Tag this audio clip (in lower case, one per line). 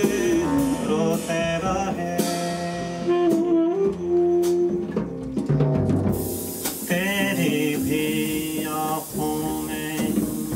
brass instrument
saxophone